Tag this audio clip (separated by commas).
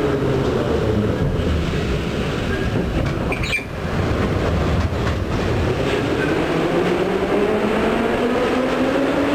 Train, Vehicle, Subway, Rail transport